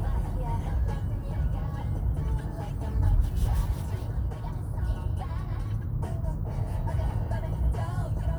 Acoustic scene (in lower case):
car